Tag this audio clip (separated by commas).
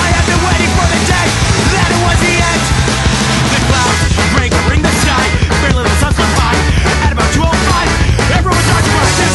Music